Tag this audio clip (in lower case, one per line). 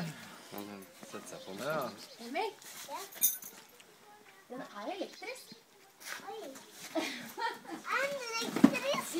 speech